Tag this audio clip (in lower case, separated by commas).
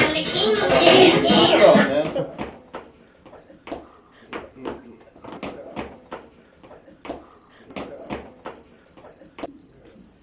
speech